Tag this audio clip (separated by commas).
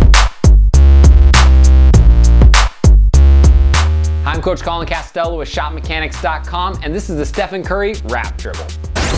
Speech, Music